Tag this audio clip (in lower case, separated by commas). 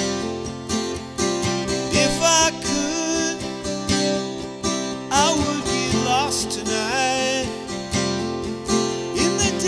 country, singing